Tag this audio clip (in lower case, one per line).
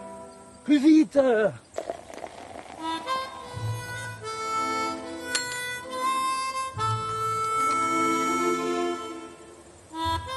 music
speech